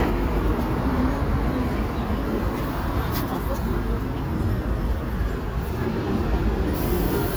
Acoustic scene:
residential area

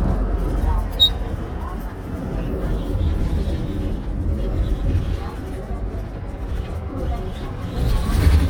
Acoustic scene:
bus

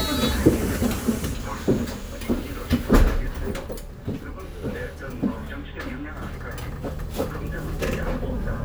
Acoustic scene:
bus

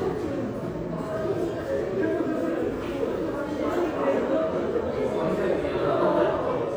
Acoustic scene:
subway station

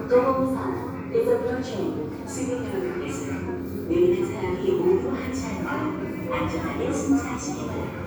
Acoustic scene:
subway station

